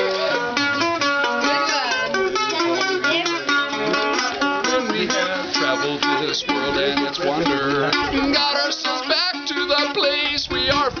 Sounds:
playing mandolin

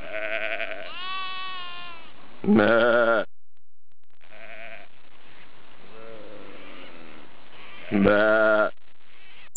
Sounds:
bleat, sheep, sheep bleating

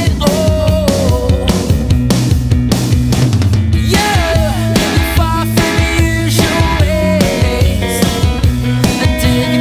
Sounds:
music, jazz

